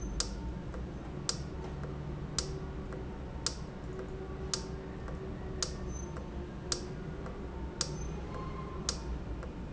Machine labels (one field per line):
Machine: valve